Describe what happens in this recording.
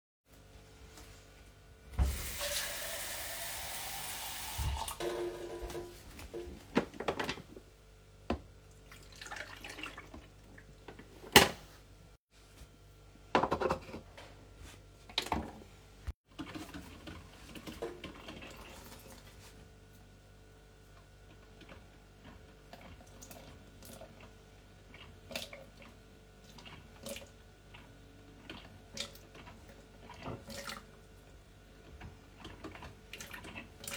I refilled water in my coffe machine and then turned it on to make coffee.